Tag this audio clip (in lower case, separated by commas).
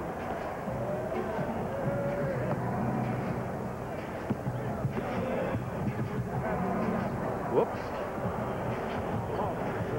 speech